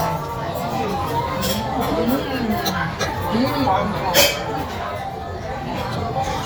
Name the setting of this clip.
restaurant